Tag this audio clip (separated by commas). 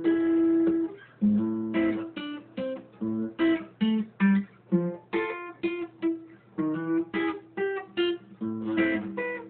Plucked string instrument, Musical instrument, Strum, Music, Guitar, Acoustic guitar